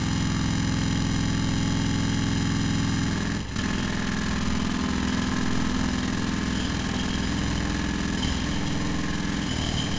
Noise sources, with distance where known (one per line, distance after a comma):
unidentified impact machinery